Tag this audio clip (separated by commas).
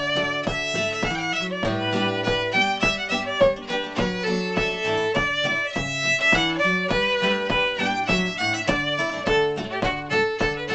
Violin, Music, Musical instrument